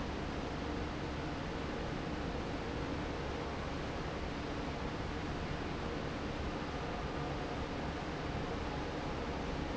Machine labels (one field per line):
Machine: fan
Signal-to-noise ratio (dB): -6 dB